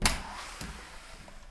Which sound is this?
door opening